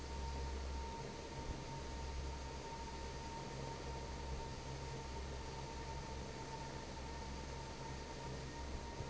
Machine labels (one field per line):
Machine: fan